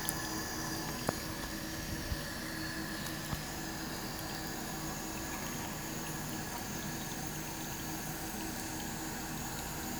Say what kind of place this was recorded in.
restroom